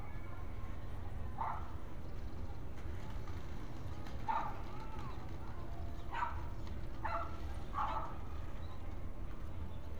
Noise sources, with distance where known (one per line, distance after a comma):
dog barking or whining, near